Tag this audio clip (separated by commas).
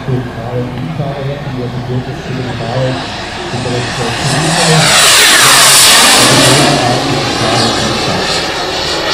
airplane flyby